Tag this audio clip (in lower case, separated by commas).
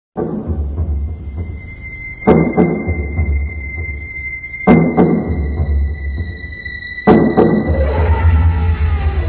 animal, music